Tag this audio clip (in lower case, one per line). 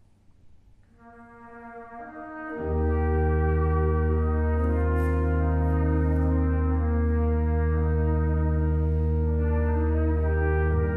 bowed string instrument
cello
double bass